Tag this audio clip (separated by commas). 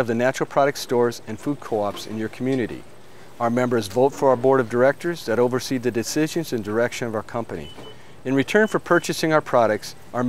Speech